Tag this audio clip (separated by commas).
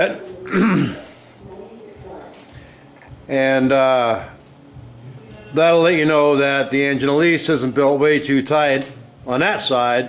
Speech